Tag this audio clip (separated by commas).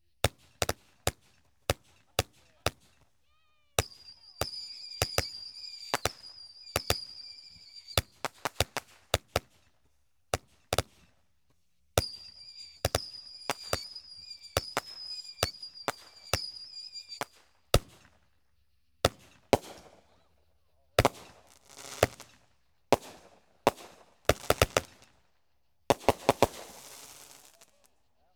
Explosion, Fireworks